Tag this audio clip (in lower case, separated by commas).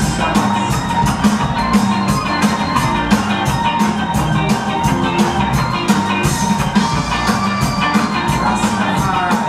music, reggae